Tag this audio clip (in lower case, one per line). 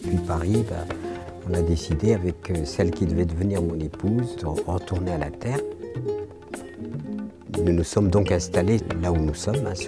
speech
music